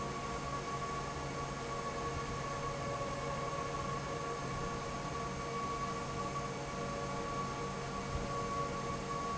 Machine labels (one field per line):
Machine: fan